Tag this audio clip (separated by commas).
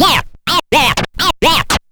Musical instrument, Scratching (performance technique), Music